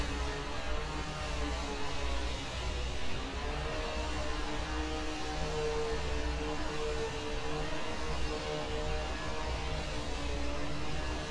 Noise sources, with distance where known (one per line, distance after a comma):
small or medium rotating saw, far